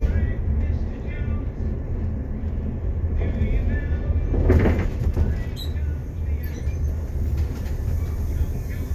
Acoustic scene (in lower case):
bus